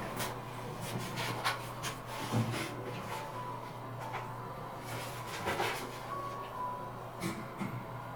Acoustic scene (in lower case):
elevator